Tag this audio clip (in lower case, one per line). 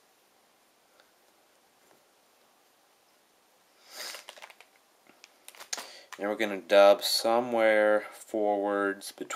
speech